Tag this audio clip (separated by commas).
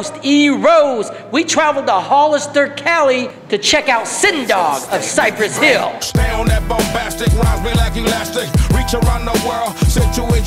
Music, Speech